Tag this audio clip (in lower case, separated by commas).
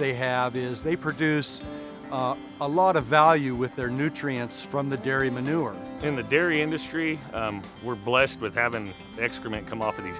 music, speech